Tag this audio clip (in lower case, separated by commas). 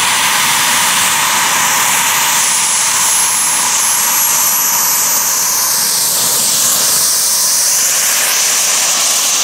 fixed-wing aircraft